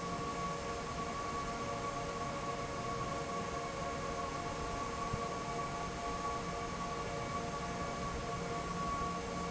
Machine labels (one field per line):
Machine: fan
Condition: normal